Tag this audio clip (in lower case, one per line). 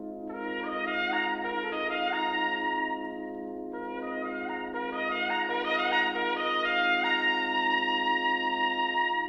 trumpet
brass instrument